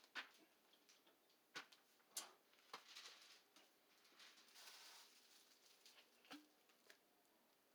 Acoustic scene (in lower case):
kitchen